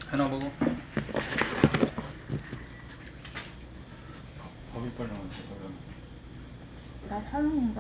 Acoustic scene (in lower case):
restaurant